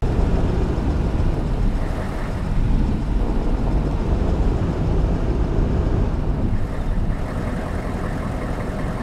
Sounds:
speech, car

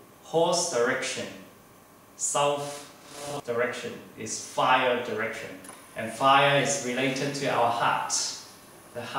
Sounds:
speech, inside a small room

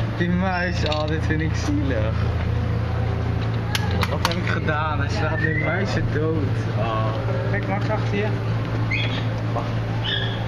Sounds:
inside a small room, speech

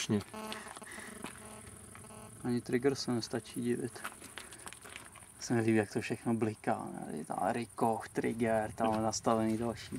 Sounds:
speech

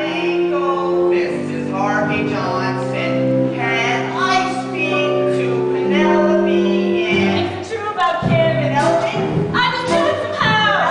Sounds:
music

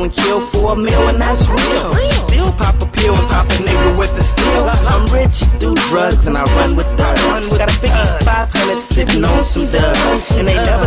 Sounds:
music

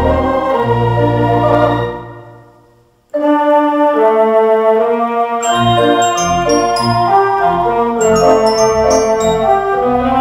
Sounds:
music

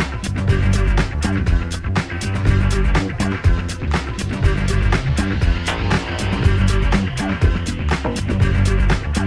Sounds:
music

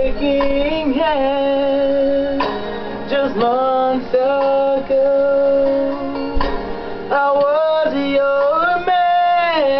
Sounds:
music, male singing

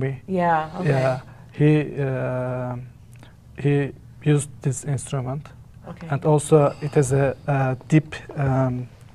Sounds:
speech

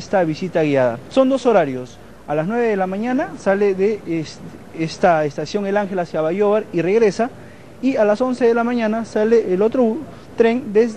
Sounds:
speech

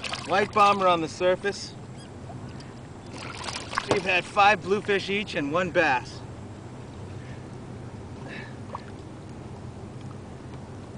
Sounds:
speech

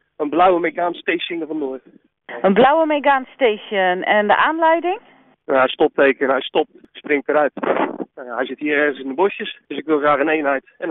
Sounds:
speech

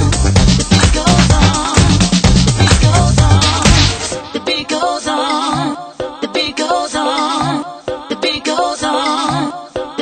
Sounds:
music, dance music

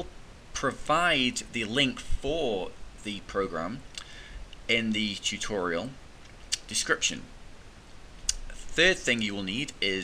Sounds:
speech

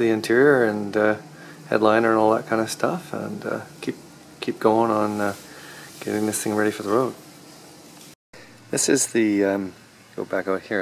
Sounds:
speech, inside a small room

